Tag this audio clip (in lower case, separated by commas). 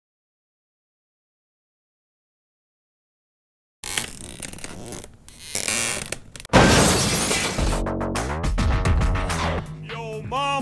speech, music